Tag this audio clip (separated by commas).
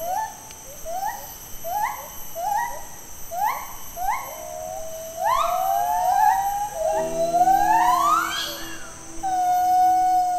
gibbon howling